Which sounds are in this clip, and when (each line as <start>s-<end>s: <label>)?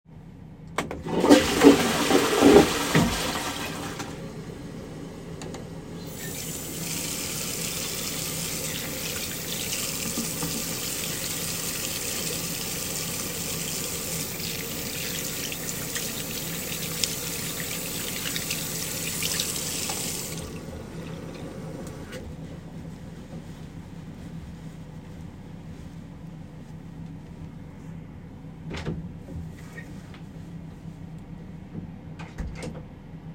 0.7s-4.4s: toilet flushing
6.0s-20.8s: running water
28.6s-30.2s: door
31.9s-33.0s: door